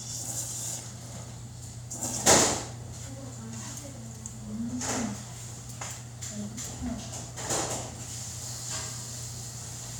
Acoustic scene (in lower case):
restaurant